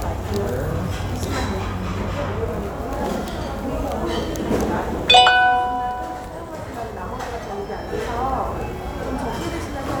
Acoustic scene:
restaurant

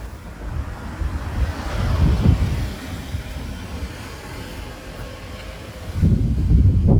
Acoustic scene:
residential area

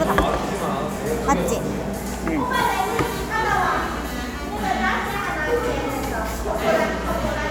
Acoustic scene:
cafe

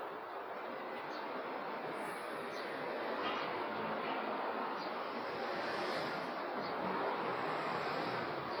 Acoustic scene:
residential area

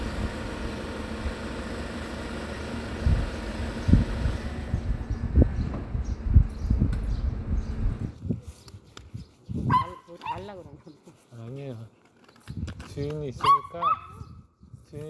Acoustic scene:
residential area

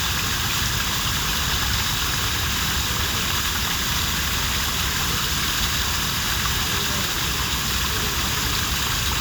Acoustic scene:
park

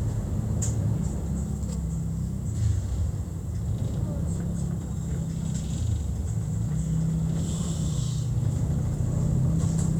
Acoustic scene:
bus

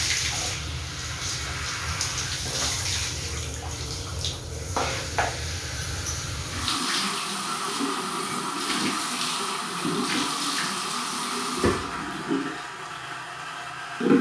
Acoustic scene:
restroom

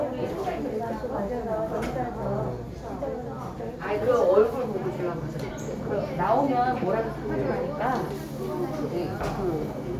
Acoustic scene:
crowded indoor space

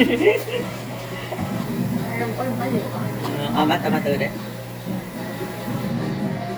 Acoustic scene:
cafe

